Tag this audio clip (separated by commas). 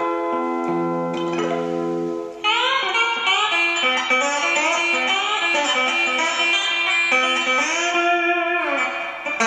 Strum, Music, Plucked string instrument, Guitar, Musical instrument